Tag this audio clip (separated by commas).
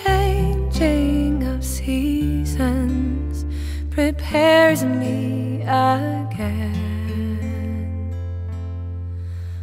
Music